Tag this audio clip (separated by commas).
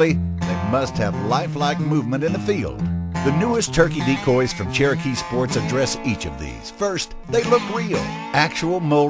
Music, Speech